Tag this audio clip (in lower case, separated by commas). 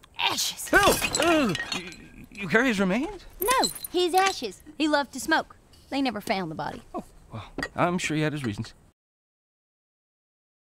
speech